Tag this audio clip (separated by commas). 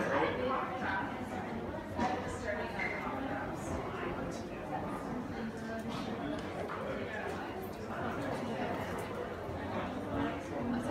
Speech